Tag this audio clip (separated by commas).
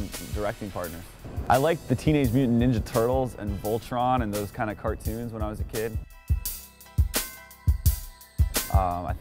Music, Speech